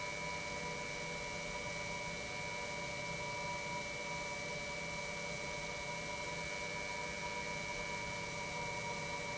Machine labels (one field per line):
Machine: pump